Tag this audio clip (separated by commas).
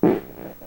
Fart